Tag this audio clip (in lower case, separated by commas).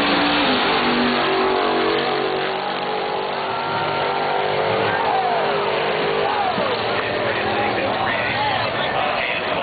speech, race car, car passing by